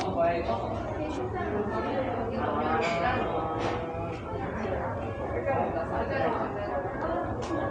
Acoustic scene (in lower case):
cafe